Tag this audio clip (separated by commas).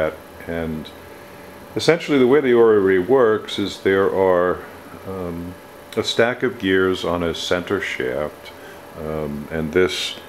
Speech